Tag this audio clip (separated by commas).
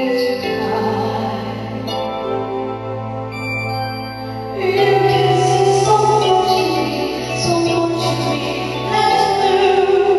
Female singing, Music